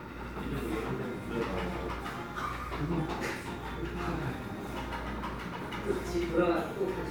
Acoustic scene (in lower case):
cafe